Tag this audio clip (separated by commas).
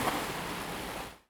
Waves, Ocean, Water